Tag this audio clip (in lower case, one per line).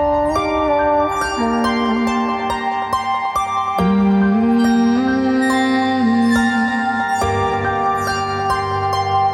music